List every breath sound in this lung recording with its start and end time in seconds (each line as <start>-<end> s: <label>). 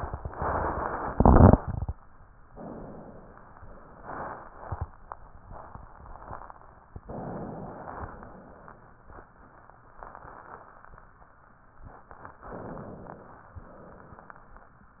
2.49-3.59 s: inhalation
7.08-8.18 s: inhalation
8.19-9.12 s: exhalation
12.46-13.53 s: inhalation
13.54-14.62 s: exhalation